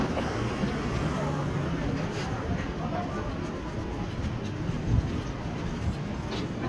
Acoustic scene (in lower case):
street